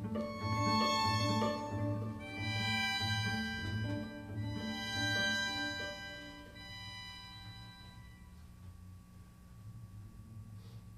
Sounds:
string section

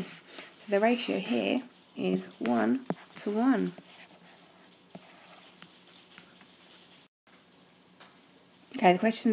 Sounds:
inside a small room
speech
writing

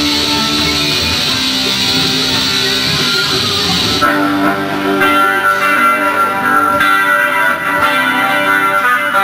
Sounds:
music
guitar
musical instrument

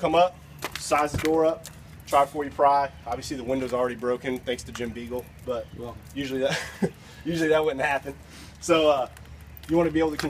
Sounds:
speech

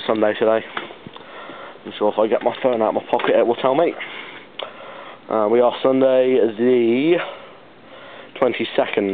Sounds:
speech

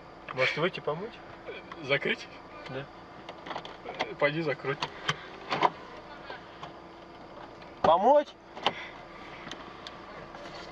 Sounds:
speech

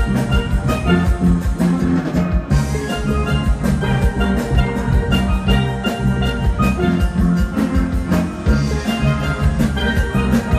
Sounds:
drum
musical instrument
music
steelpan

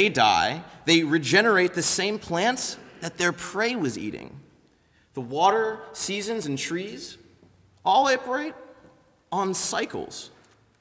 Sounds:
speech
narration
man speaking

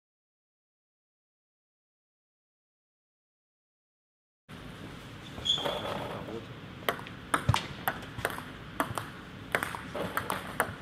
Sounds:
playing table tennis

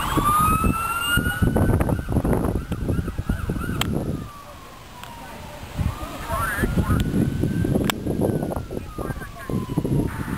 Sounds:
vehicle
speech
fire engine

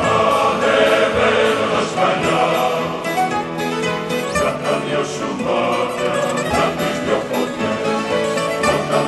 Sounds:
music

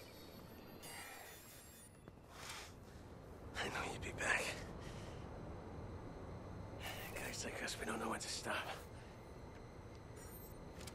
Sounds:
speech

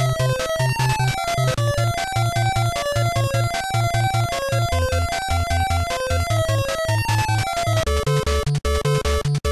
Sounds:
music
soundtrack music

